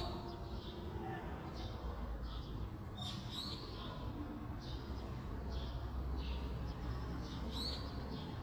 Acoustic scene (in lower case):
residential area